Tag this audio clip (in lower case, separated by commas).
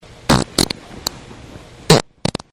fart